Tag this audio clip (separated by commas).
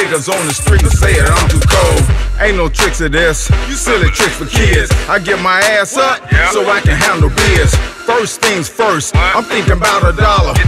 Music